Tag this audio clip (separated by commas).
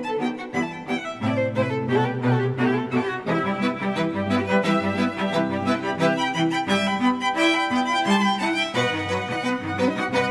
Music, Classical music